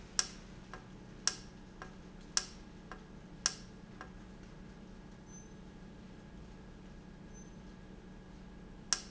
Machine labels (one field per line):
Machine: valve